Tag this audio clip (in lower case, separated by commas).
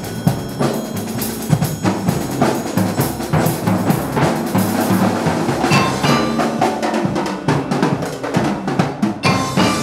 mallet percussion, glockenspiel, marimba